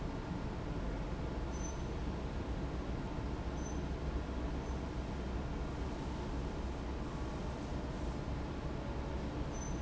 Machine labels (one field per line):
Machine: fan